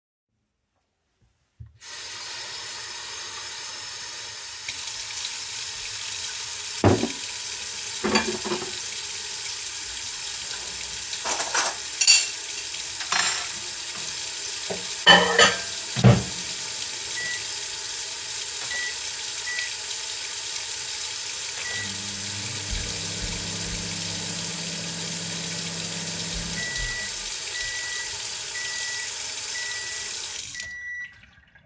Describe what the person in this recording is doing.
I fill cups with water to bring to the table and forget to close the valve. I also put cutlery on the table. Then I put cutlery into the microwave.